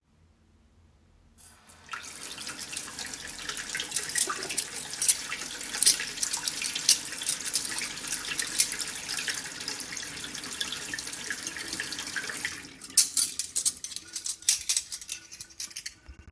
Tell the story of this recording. I turned on the tap and held cutlery under the running water rinsing each piece individually. The sounds of running water and clinking cutlery overlapped throughout. I turned off the tap when finished.